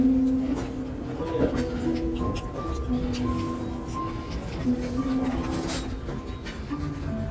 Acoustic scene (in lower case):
restaurant